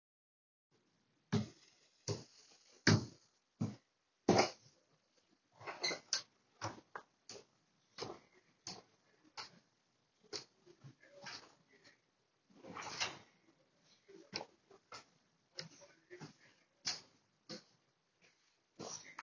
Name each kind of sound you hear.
footsteps, door